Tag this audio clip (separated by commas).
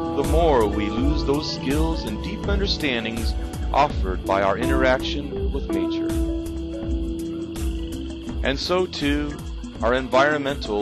Music, Speech